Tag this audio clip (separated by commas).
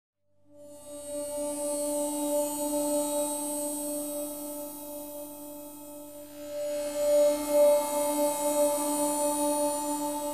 Music